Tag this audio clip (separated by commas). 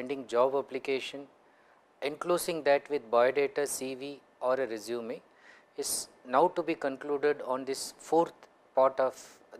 Speech